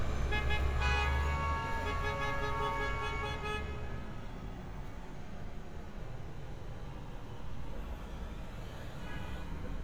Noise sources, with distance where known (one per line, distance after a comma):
car horn, near